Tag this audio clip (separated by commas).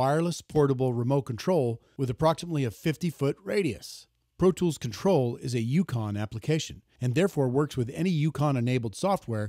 Speech